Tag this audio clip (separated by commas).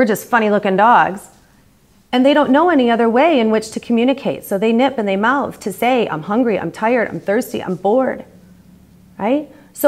Speech